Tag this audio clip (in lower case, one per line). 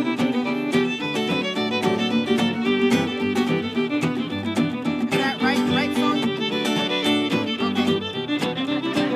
speech
music